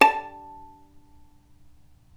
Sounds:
music
musical instrument
bowed string instrument

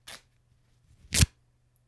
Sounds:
tearing

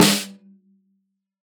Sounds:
musical instrument
music
drum
snare drum
percussion

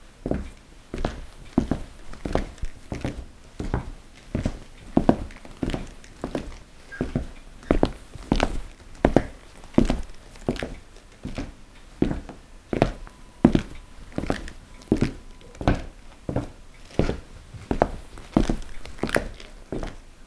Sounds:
walk

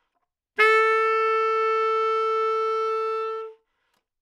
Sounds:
musical instrument
music
wind instrument

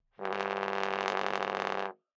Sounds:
brass instrument
musical instrument
music

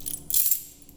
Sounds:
domestic sounds
keys jangling

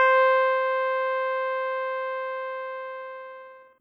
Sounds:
music
keyboard (musical)
musical instrument

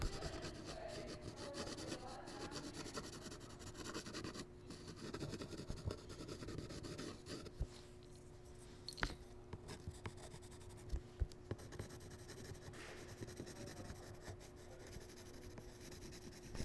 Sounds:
writing
domestic sounds

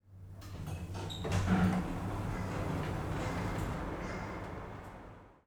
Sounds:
home sounds
sliding door
door

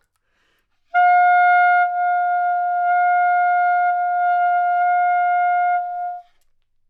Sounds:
musical instrument
music
woodwind instrument

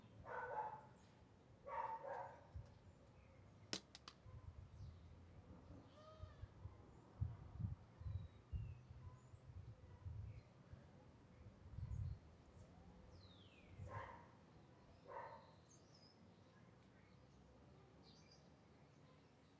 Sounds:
domestic animals
dog
animal

